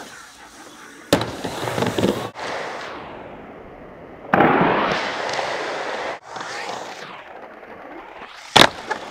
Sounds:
outside, urban or man-made

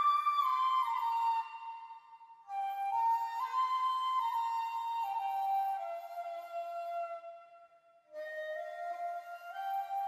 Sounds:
Flute, Music

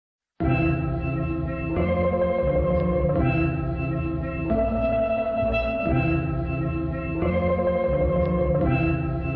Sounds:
Music

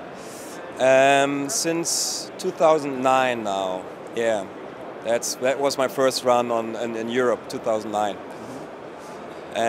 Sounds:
Speech

